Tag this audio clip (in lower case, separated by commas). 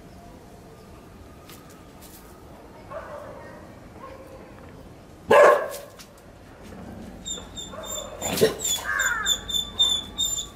outside, rural or natural, animal, speech